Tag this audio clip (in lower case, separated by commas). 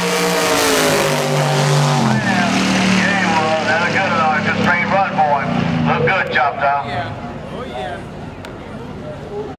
speech